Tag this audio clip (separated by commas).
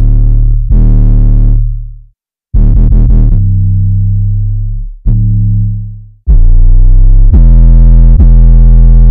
Music, Musical instrument